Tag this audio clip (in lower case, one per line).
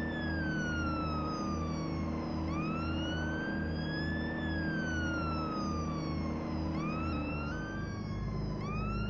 vehicle